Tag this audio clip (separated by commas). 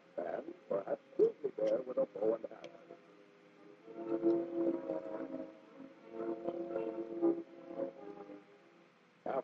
Speech, Music